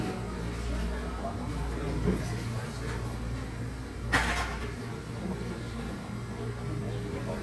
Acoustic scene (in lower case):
cafe